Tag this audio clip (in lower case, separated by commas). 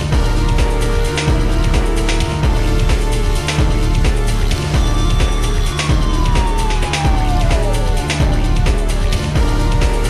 video game music, background music, music